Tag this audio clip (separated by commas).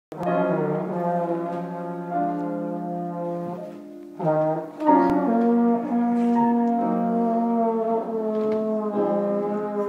playing trombone